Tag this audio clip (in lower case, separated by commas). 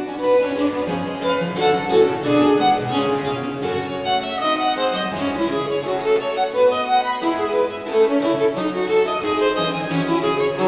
music, fiddle, musical instrument